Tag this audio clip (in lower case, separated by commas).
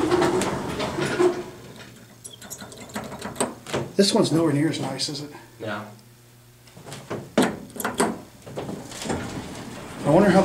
speech